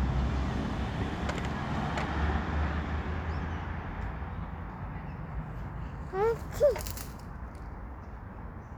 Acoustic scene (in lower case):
street